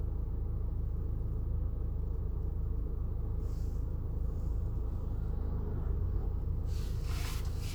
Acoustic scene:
car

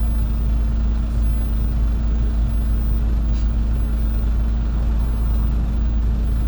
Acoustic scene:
bus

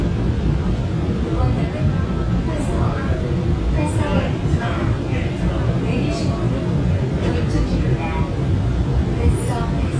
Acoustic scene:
subway train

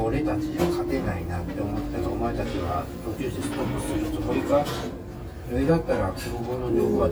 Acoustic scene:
restaurant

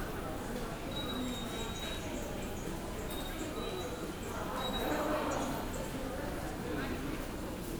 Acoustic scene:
subway station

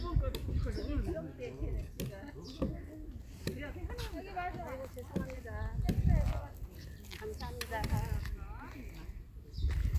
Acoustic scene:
park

